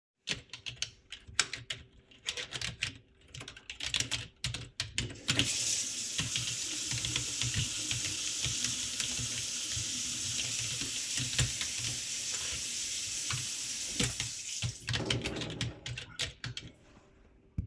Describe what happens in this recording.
i type on the keyboard. then the water tap is turned on, then off again. still typing.